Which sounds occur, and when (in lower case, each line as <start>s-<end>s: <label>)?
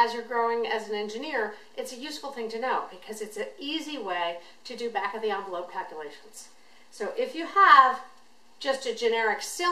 0.0s-1.5s: woman speaking
0.0s-9.7s: background noise
1.5s-1.7s: breathing
1.8s-4.4s: woman speaking
4.4s-4.6s: breathing
4.6s-6.5s: woman speaking
6.6s-6.9s: breathing
6.9s-8.1s: woman speaking
8.6s-9.7s: woman speaking